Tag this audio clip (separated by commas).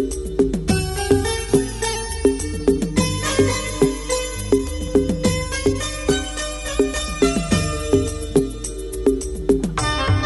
Music, Musical instrument